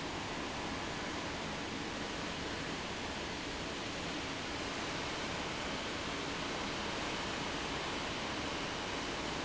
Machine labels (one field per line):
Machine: fan